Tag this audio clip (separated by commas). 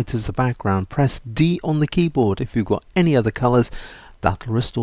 Speech